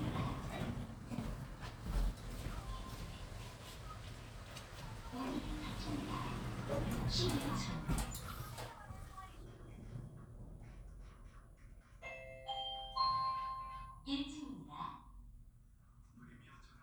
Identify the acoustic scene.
elevator